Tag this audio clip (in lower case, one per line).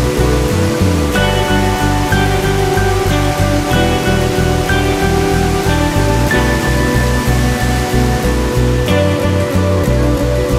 waterfall
music